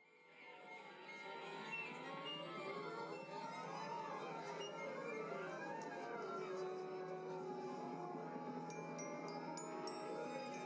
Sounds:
Music, Theme music

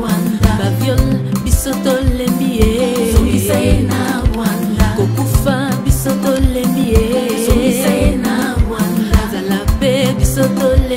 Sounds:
Music

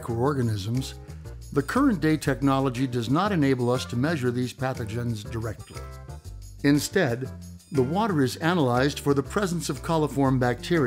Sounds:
Music, Speech

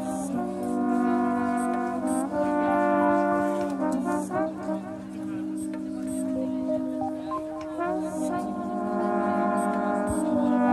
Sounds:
playing trombone

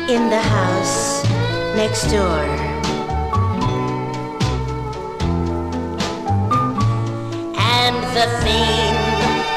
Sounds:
House music, Music, Speech

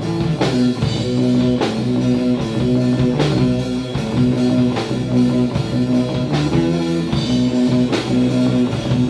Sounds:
Blues, Drum, Drum kit, Percussion, Musical instrument, Rock music, Music, Guitar

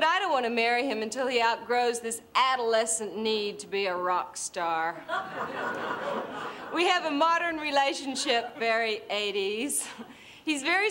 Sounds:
woman speaking

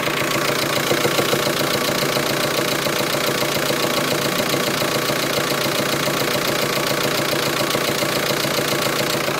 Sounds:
Medium engine (mid frequency), Engine

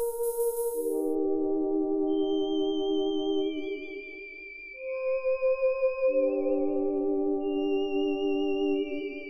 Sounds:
Music, Ambient music

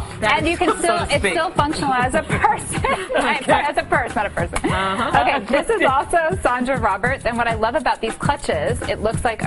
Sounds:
Music, Speech

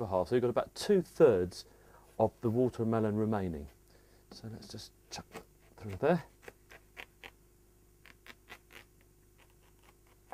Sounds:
Speech

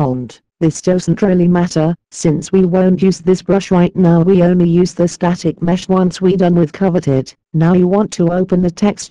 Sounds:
Speech

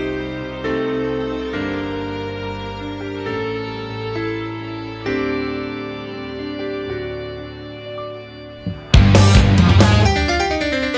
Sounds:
Music

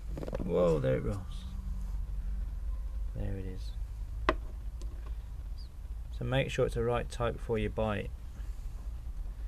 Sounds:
Speech

